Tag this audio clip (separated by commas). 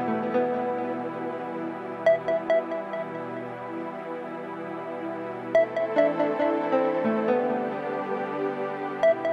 Music